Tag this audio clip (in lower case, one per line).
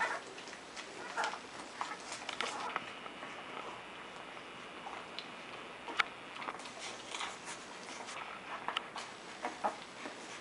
animal
inside a small room
dog
pets